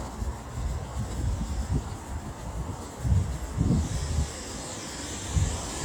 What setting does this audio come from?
street